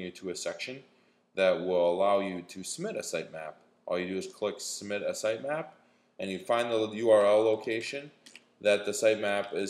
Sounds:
speech

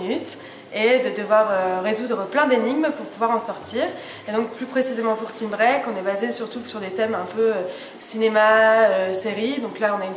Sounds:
speech

